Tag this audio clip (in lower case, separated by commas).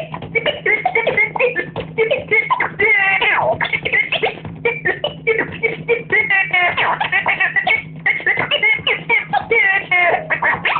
music, scratching (performance technique)